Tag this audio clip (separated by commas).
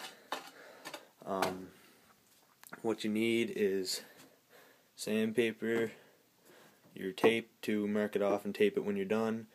Speech